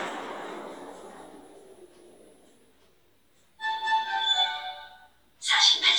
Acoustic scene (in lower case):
elevator